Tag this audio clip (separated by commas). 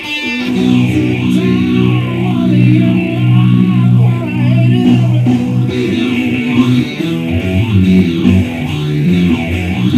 Musical instrument, Guitar, Plucked string instrument, Strum, Music